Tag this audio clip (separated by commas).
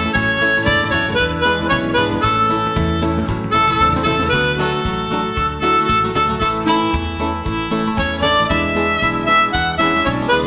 Music